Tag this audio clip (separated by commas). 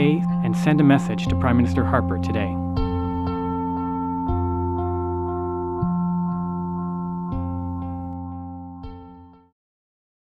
Speech, Music